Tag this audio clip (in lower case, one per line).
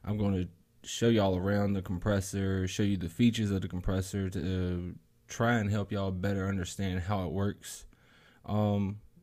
speech